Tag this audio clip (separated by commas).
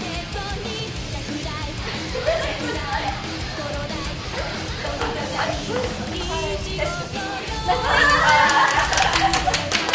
Tap, Music, Speech